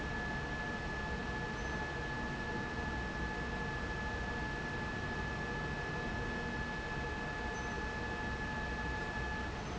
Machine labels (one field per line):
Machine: fan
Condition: abnormal